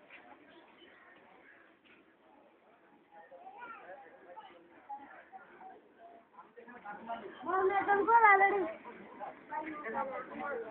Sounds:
speech

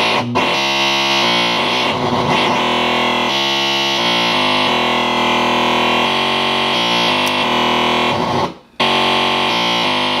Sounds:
synthesizer
musical instrument
music
inside a small room

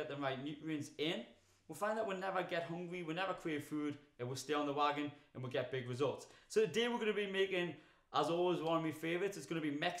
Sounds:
speech

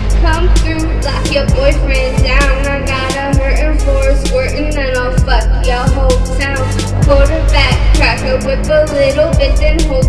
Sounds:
music

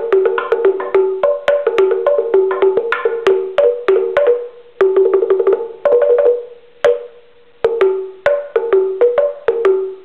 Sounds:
percussion
music

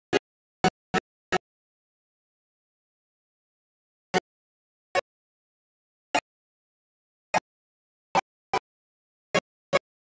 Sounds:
keyboard (musical)
piano

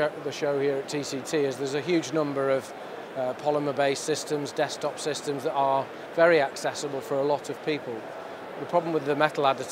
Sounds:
speech

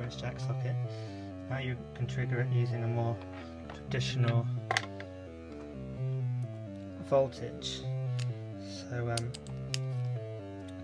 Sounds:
speech
music

